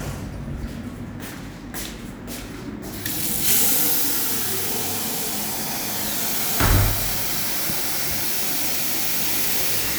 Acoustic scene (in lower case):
restroom